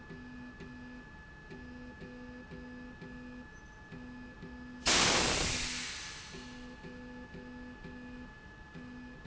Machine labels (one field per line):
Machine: slide rail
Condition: normal